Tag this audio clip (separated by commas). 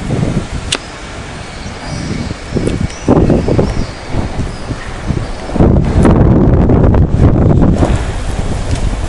outside, urban or man-made